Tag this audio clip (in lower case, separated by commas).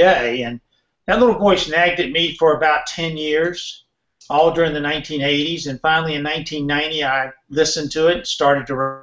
speech